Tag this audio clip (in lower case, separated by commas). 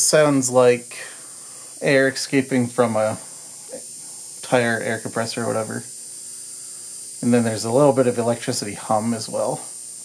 speech